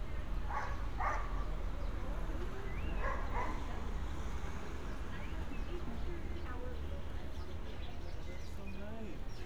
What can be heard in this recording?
engine of unclear size, person or small group talking, dog barking or whining